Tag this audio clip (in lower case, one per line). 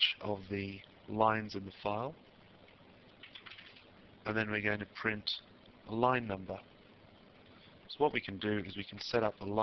speech